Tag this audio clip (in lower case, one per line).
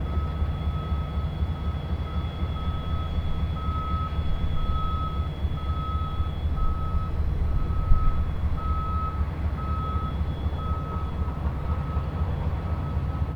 truck
vehicle
motor vehicle (road)